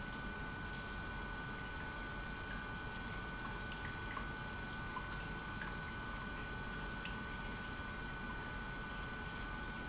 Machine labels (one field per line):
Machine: pump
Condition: normal